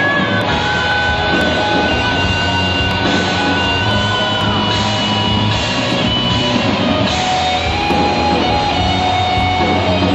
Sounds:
music, musical instrument

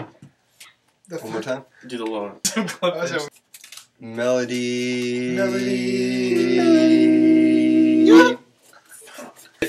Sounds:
speech, yell

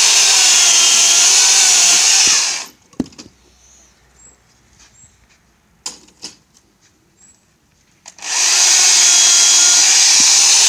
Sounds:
chainsaw

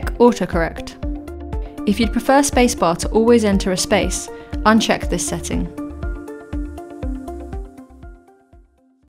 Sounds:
speech, music

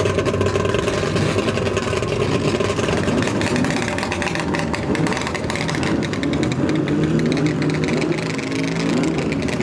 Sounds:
sound effect

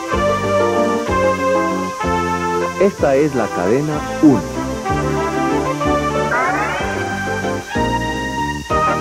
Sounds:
television, music, speech

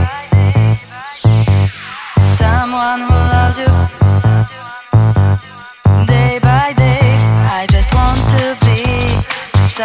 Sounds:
electronic music, music, electronic dance music

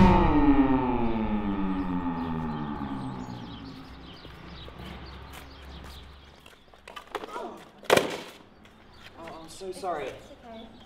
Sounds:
speech

